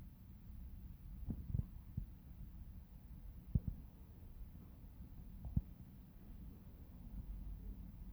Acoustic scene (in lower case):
residential area